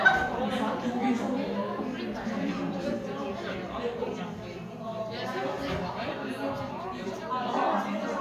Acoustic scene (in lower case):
crowded indoor space